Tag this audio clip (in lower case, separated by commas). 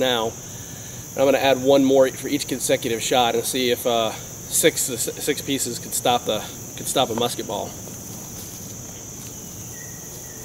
speech